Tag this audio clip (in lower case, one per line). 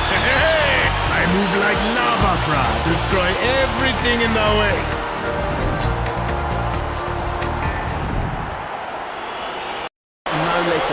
music
speech